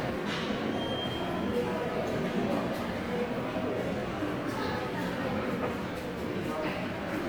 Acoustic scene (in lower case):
subway station